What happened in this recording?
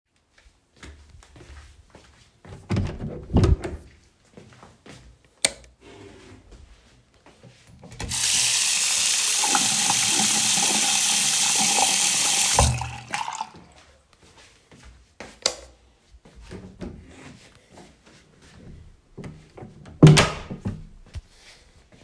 I walk to the bathroom door, open it, turn on the light, wash my hand, turn off the light, close the door.